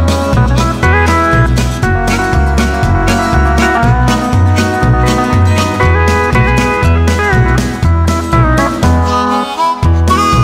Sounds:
music

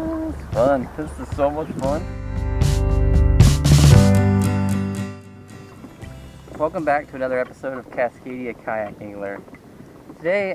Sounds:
music
vehicle
rowboat
speech
boat

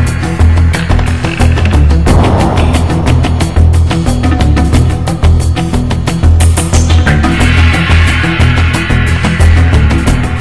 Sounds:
music

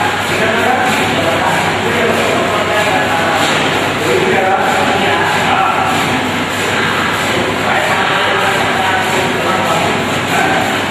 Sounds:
speech

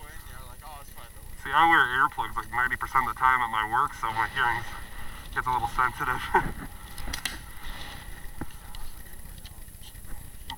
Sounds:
speech

